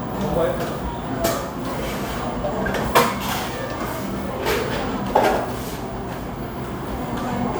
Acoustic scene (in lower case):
cafe